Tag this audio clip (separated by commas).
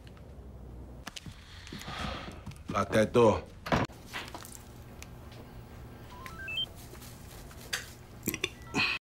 Speech